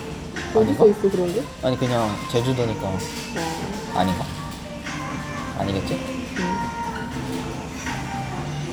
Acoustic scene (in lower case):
restaurant